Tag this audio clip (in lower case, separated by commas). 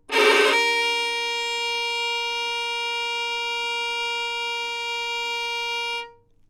music, bowed string instrument, musical instrument